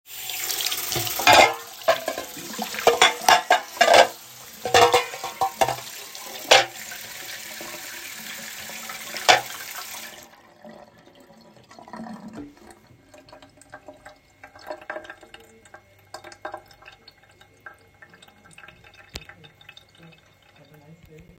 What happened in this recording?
I turned on the tap and started working through the pile of dishes in the sink. I scrubbed each plate and clinked the cutlery together as I sorted through it. Once everything was clean, I turned off the water and left the dishes to dry.